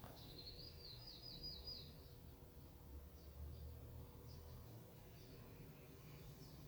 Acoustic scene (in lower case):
park